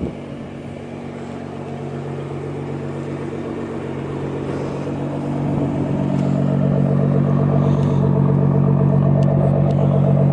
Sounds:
vehicle

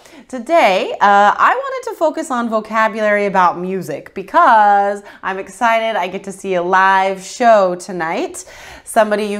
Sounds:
speech

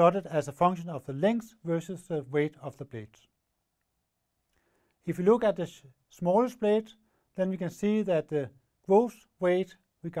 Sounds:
speech

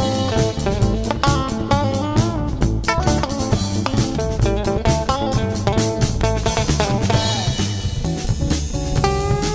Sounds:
music

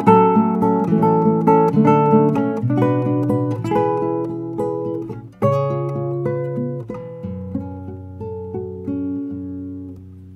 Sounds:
electric guitar, musical instrument, music, guitar, strum, plucked string instrument

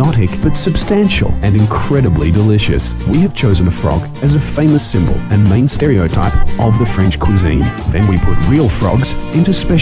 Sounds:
music, speech

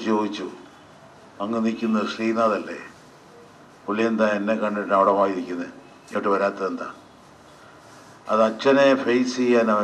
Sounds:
narration, speech, man speaking

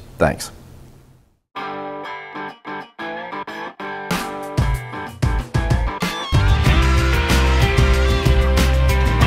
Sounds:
music, speech, distortion

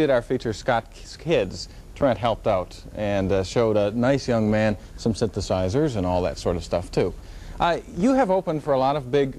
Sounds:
speech

